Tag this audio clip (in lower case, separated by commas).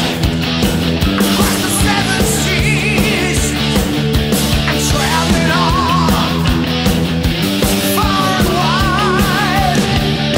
music, electric guitar, musical instrument, guitar